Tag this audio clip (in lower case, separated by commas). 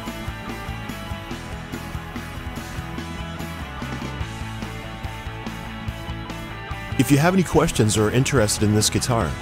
speech, music, jingle (music)